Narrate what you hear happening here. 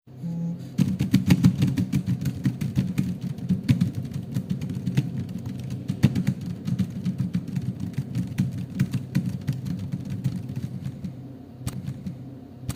I put the phone on the desk and I start typing in the keyboard